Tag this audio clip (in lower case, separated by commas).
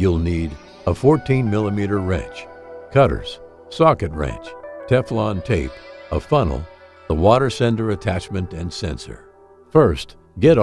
music, speech